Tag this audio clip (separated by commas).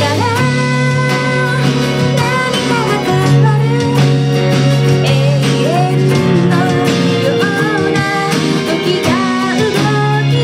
Plucked string instrument, Acoustic guitar, Guitar, Singing, Music, Musical instrument